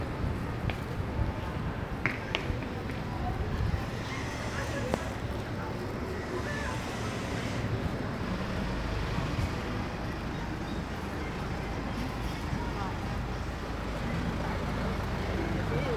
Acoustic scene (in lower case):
street